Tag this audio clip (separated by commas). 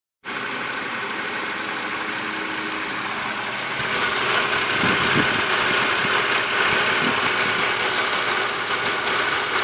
Vehicle, Car, Engine